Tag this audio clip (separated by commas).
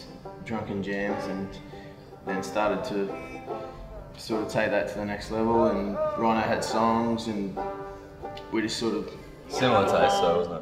Speech, Music